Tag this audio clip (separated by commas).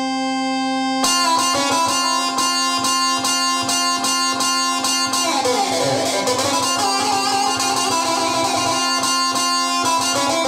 Keyboard (musical), Harpsichord